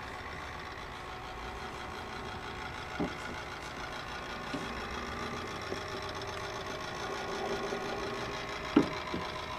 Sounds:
engine, inside a large room or hall

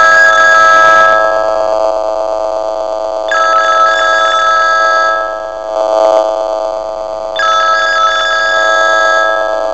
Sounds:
telephone bell ringing, telephone, ringtone

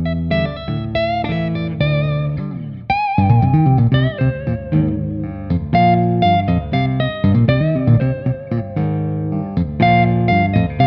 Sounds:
music, acoustic guitar, musical instrument, plucked string instrument, guitar

